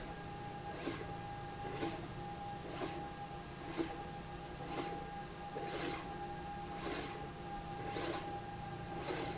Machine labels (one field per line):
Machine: slide rail